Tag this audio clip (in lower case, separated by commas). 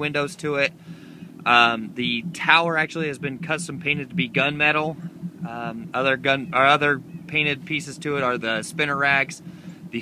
speech